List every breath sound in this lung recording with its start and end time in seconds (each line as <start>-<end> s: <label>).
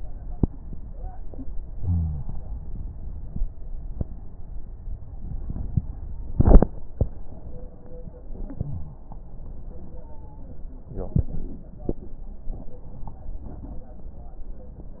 1.75-2.20 s: wheeze
1.77-2.48 s: inhalation